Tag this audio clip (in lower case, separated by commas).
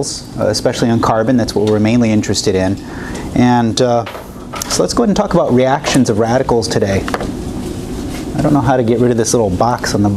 speech